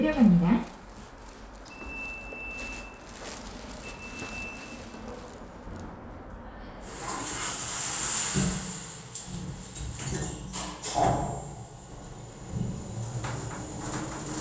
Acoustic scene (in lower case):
elevator